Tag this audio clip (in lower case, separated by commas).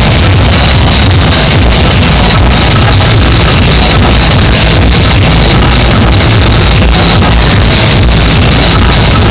electronic music, music, techno